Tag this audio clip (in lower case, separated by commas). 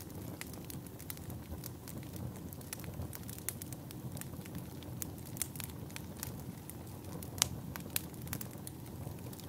fire crackling